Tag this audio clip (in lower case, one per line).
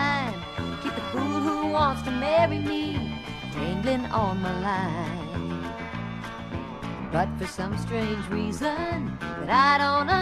music